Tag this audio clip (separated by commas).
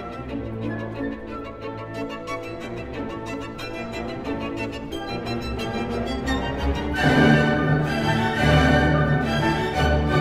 fiddle, Violin, Music, Musical instrument